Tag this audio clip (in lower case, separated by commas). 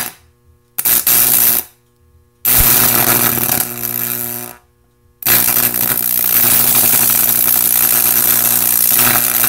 arc welding